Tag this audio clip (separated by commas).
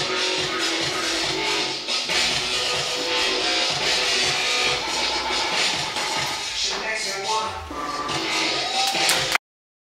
Dubstep, Music